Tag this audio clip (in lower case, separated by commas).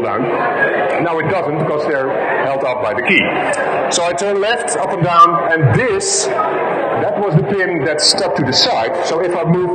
speech, monologue